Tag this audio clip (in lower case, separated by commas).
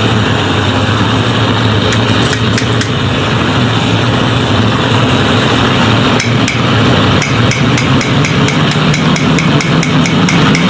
blowtorch igniting